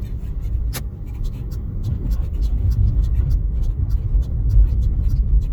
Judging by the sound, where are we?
in a car